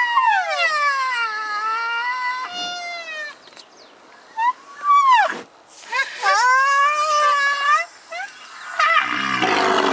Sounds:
people screaming

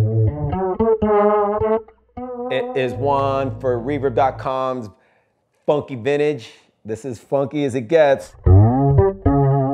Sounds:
effects unit
guitar
bass guitar
speech
music
musical instrument
chorus effect
plucked string instrument

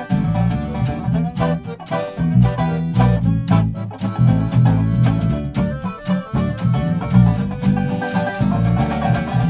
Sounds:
banjo
plucked string instrument
musical instrument
music
bluegrass

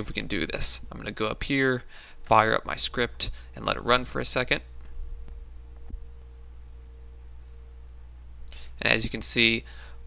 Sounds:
speech

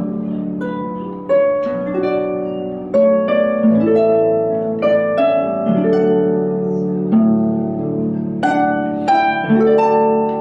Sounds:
pizzicato
playing harp
harp

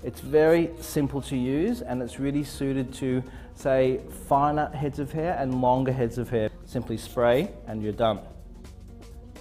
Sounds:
speech
music
spray

